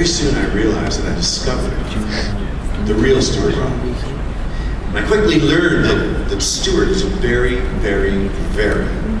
A man speaking over a speaker